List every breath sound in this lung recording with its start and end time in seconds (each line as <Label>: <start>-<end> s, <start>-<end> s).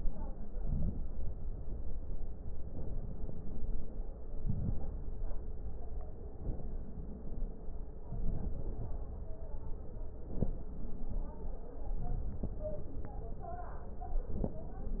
Inhalation: 0.51-1.05 s, 4.36-4.90 s, 10.20-10.75 s, 14.22-14.76 s